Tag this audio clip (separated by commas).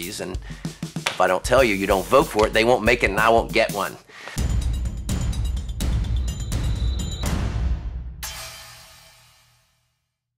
Music, Speech